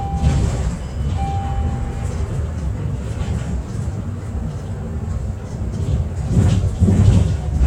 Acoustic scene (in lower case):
bus